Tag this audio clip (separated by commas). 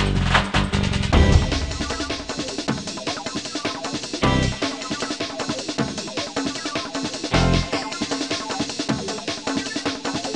Music